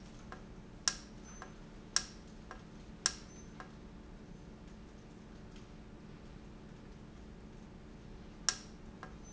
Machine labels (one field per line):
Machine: valve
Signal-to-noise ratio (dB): 6 dB